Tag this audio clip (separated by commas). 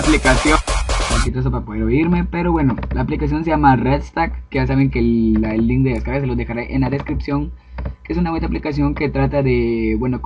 Electronic music, Music, Speech